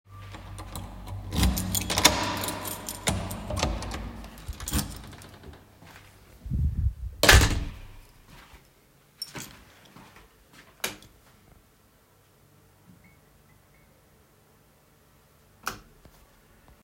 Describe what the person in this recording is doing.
I carried the device in my hand during the recording. I first handled a keychain, then unlocked and opened the door. After entering, I used the light switch. The target events occurred in a natural domestic sequence.